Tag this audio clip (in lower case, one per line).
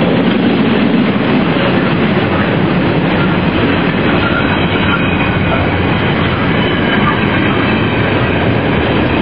train
clickety-clack
train wagon
rail transport